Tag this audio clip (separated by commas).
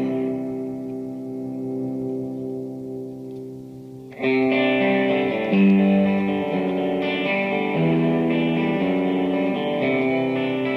Music, slide guitar, Musical instrument